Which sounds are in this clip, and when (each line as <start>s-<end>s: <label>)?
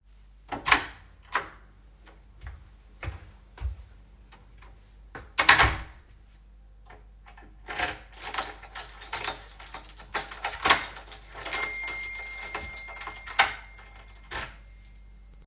0.0s-1.7s: door
2.2s-4.7s: footsteps
5.1s-6.0s: door
6.9s-15.5s: door
8.1s-14.6s: keys
11.3s-14.6s: phone ringing